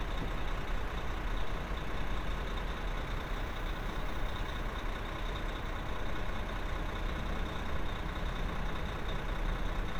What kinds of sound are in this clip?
large-sounding engine